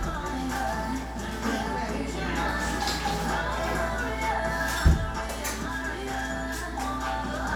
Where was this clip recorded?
in a cafe